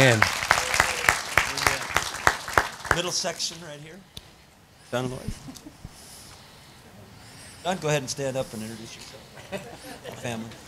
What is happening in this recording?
A man speaking with people clapping